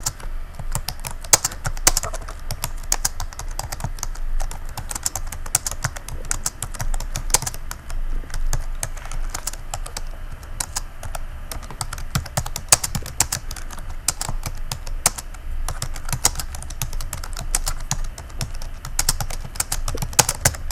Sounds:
Computer keyboard, Typing, Domestic sounds

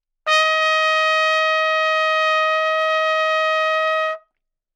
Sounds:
Trumpet, Brass instrument, Musical instrument, Music

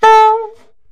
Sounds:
woodwind instrument, Musical instrument, Music

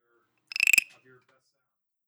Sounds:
Frog, Wild animals, Animal

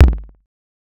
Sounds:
Drum, Musical instrument, Music, Percussion, Bass drum

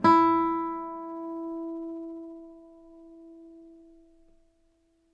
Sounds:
Guitar, Music, Musical instrument, Plucked string instrument

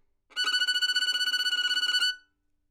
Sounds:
Bowed string instrument, Music, Musical instrument

